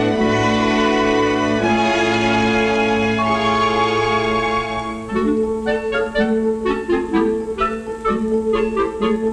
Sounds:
Music

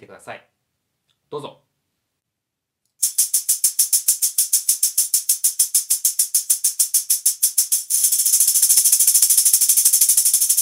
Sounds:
playing tambourine

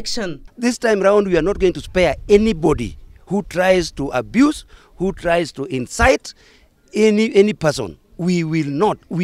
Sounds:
man speaking, Narration, Speech

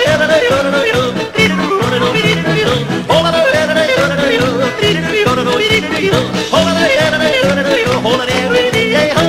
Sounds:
yodelling

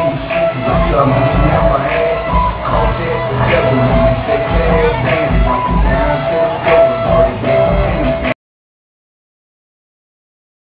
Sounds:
Speech, Music

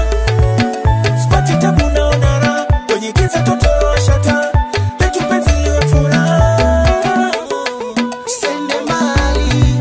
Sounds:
Music

